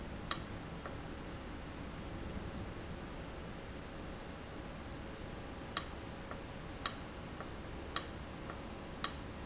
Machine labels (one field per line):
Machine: valve